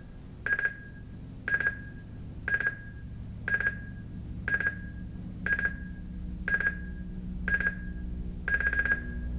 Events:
[0.00, 9.35] mechanisms
[0.42, 0.99] beep
[1.42, 1.94] beep
[2.43, 2.97] beep
[3.42, 3.92] beep
[4.47, 4.94] beep
[5.41, 5.94] beep
[6.44, 6.93] beep
[7.45, 7.95] beep
[8.45, 9.24] beep

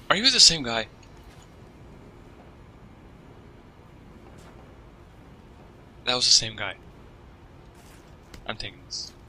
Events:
[0.00, 0.96] man speaking
[0.00, 9.25] video game sound
[5.86, 6.73] man speaking
[8.38, 9.13] man speaking

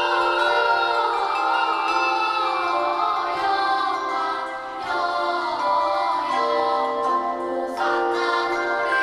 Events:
[0.00, 9.02] choir
[0.00, 9.02] music

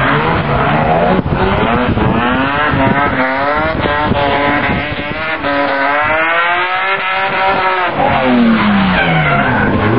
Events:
[0.00, 1.88] accelerating
[0.00, 9.95] car
[1.21, 1.91] wind noise (microphone)
[2.14, 3.21] wind noise (microphone)
[2.20, 5.10] accelerating
[3.39, 4.13] wind noise (microphone)
[4.53, 5.37] wind noise (microphone)
[5.35, 7.89] accelerating
[5.97, 6.20] wind noise (microphone)
[6.65, 7.62] wind noise (microphone)
[8.53, 9.76] tire squeal

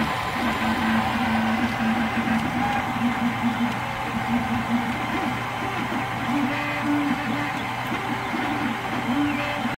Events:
[0.00, 9.72] mechanisms
[0.00, 9.72] television
[1.62, 1.70] tick
[2.31, 2.40] tick
[2.65, 2.73] tick
[3.65, 3.72] tick
[5.66, 5.94] tweet
[6.22, 6.46] tweet
[7.11, 7.64] tweet
[8.11, 8.66] tweet
[9.06, 9.72] tweet

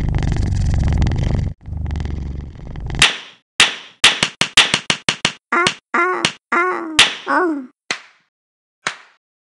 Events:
[0.00, 1.49] snoring
[1.61, 3.03] snoring
[3.00, 3.25] slap
[3.60, 3.83] slap
[4.05, 4.29] slap
[4.42, 4.78] slap
[4.90, 4.98] slap
[5.10, 5.32] slap
[5.50, 5.68] sound effect
[5.63, 5.76] slap
[5.94, 6.33] sound effect
[6.23, 6.30] slap
[6.52, 7.01] sound effect
[6.95, 7.15] slap
[7.25, 7.67] sound effect
[7.89, 8.09] slap
[8.84, 9.09] slap

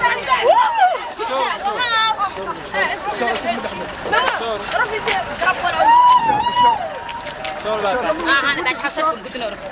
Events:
[0.00, 0.46] male speech
[0.00, 1.10] shout
[0.00, 9.71] crowd
[0.00, 9.71] speech noise
[0.00, 9.71] wind
[0.07, 0.21] walk
[0.51, 0.70] walk
[0.91, 1.29] walk
[1.14, 2.54] child speech
[1.16, 1.57] laughter
[1.17, 1.84] male speech
[2.21, 2.69] walk
[2.31, 2.92] male speech
[2.69, 3.74] child speech
[3.12, 3.79] male speech
[3.29, 3.39] generic impact sounds
[3.48, 4.76] walk
[3.86, 3.96] generic impact sounds
[4.02, 5.19] child speech
[4.35, 4.62] male speech
[5.01, 5.19] walk
[5.36, 5.84] child speech
[5.47, 6.22] walk
[5.71, 7.61] human voice
[6.14, 6.57] wind noise (microphone)
[6.38, 6.78] male speech
[6.43, 6.64] walk
[6.84, 7.96] walk
[7.57, 9.14] male speech
[8.21, 9.71] walk
[8.22, 9.54] woman speaking

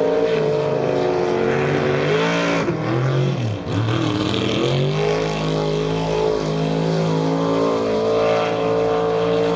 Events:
[0.00, 9.55] motorboat
[0.00, 9.55] water

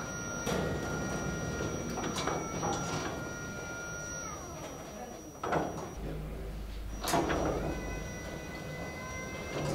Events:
[0.00, 9.74] mechanisms
[4.90, 5.19] human voice
[5.98, 6.50] human voice
[6.63, 6.81] generic impact sounds

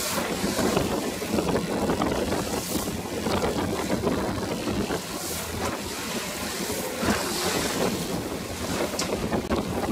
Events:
[0.00, 9.91] rowboat
[6.76, 9.91] wind noise (microphone)

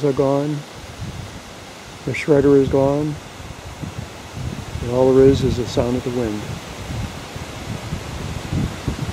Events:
[0.00, 0.58] man speaking
[0.00, 9.12] wind noise (microphone)
[1.84, 1.92] tick
[2.02, 3.13] man speaking
[4.77, 6.43] man speaking

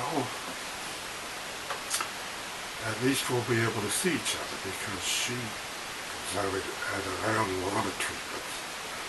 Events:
[0.00, 0.26] male speech
[0.00, 9.05] mechanisms
[0.42, 0.49] tick
[1.66, 1.71] tick
[1.89, 1.96] tick
[2.74, 5.51] male speech
[6.25, 8.62] male speech

